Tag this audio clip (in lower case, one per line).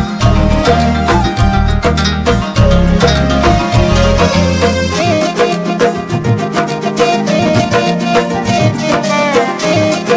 folk music
music